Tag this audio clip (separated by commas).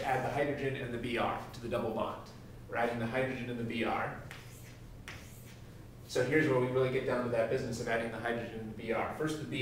Speech